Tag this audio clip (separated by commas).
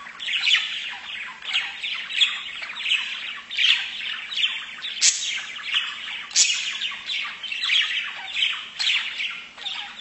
tweeting